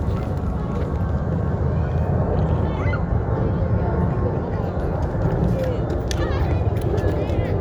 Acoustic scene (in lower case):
residential area